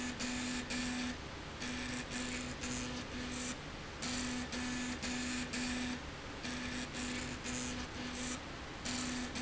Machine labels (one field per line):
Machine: slide rail